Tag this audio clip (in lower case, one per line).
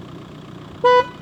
alarm
motor vehicle (road)
vehicle horn
car
vehicle